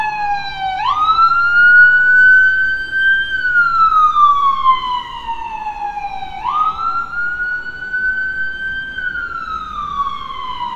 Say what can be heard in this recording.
siren